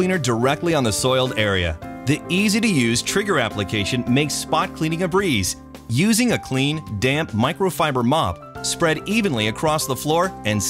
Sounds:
Speech, Music

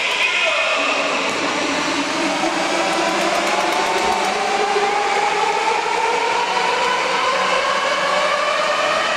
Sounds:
Music, Speech, inside a large room or hall

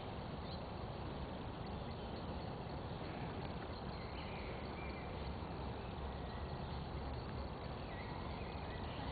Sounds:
Animal

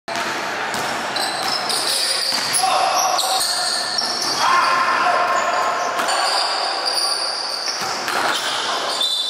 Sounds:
basketball bounce

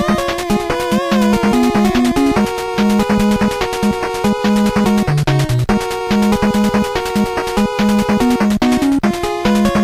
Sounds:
Music

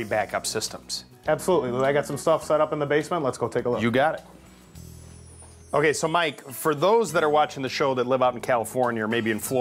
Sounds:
Speech, Music

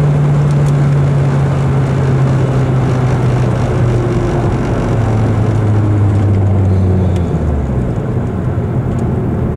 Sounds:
Vehicle, Engine

